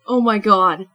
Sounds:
human voice, speech, female speech

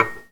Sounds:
home sounds, dishes, pots and pans

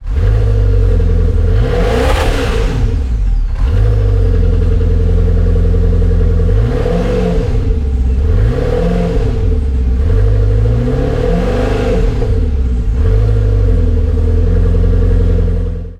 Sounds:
vehicle

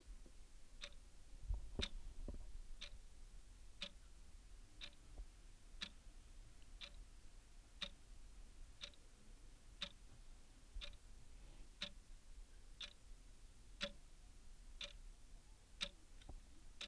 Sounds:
clock, mechanisms

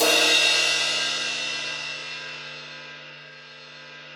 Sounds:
cymbal, crash cymbal, musical instrument, percussion, music

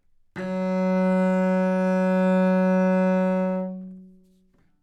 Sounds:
bowed string instrument, musical instrument, music

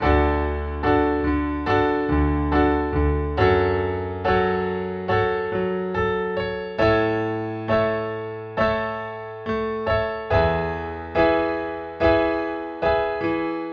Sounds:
music, musical instrument, keyboard (musical), piano

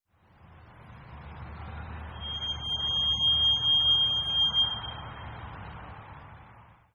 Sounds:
squeak, vehicle

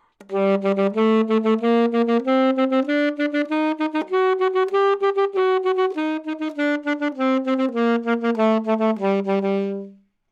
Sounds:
music, woodwind instrument, musical instrument

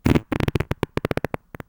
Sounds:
fart

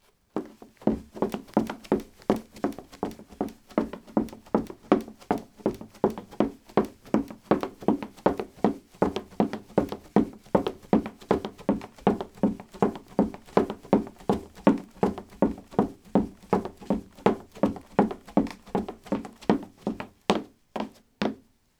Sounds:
run

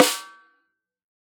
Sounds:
snare drum, musical instrument, drum, music, percussion

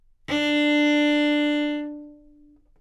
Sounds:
musical instrument, music, bowed string instrument

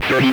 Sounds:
speech, human voice

